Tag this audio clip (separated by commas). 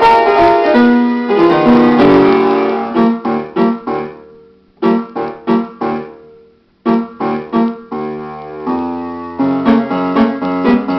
Keyboard (musical), Piano, Music, Musical instrument